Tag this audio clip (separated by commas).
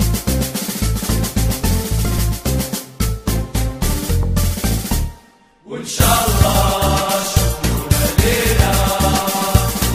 Music